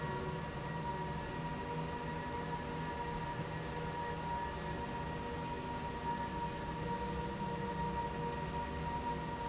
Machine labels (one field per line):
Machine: slide rail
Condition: normal